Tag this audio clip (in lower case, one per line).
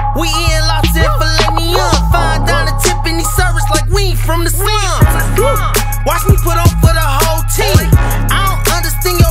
music
exciting music